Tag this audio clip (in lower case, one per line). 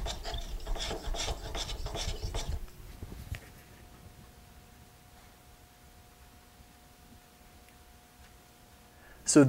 rub
wood
filing (rasp)